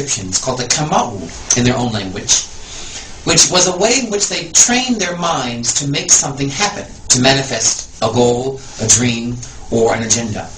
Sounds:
speech

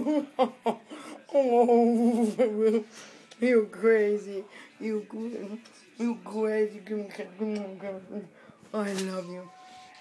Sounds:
speech, inside a small room

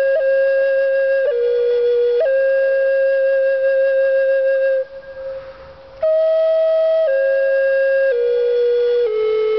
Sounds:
playing flute, music, flute

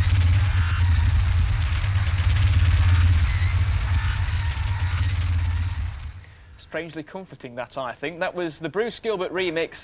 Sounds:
speech, cacophony, vibration

